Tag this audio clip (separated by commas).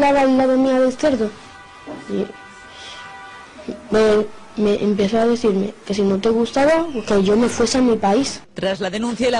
Speech